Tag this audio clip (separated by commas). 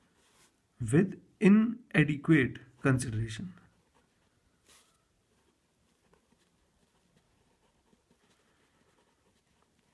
Silence, Speech, inside a small room